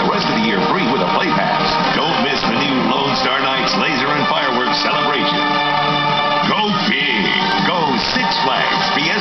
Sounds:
Music, Speech

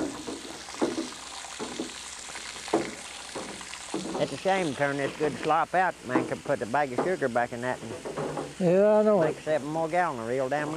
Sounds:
Speech

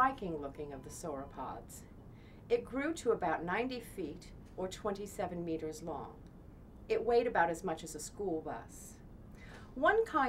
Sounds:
Speech

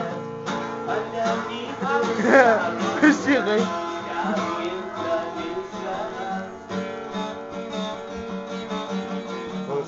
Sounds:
Speech, Guitar, Strum, Musical instrument, Acoustic guitar, Plucked string instrument, Music

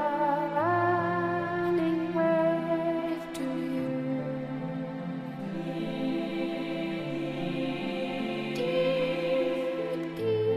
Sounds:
Music

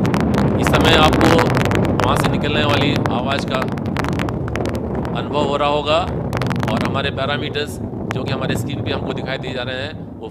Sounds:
missile launch

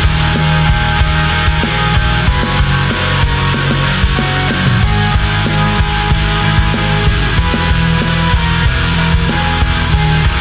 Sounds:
Music

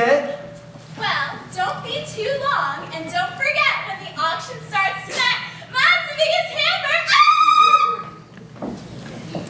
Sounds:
Speech

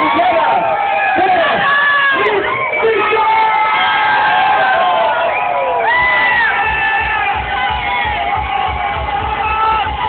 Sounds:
people crowd, speech babble, Crowd

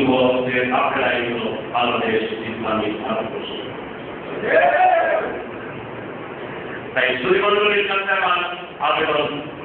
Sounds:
Speech, Male speech

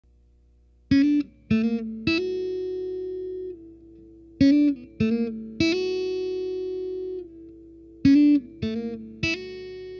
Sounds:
Plucked string instrument, Acoustic guitar, Music, Guitar, inside a small room, Musical instrument

